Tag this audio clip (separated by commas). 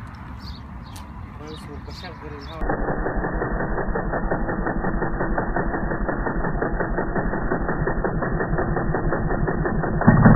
Speech